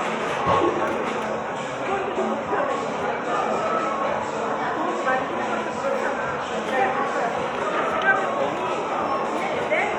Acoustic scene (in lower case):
cafe